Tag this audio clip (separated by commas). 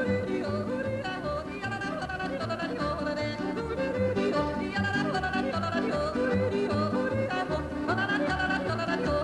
yodelling